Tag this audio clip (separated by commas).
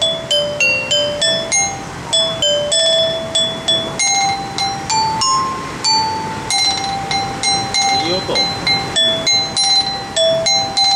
playing glockenspiel